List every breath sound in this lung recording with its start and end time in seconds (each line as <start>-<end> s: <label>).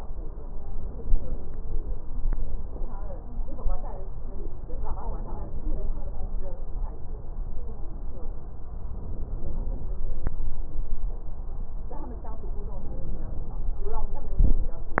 8.75-10.06 s: inhalation
12.73-13.86 s: inhalation